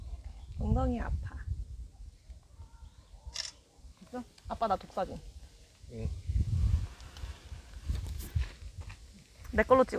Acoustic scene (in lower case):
park